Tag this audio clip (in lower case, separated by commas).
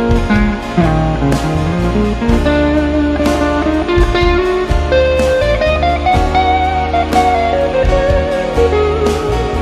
music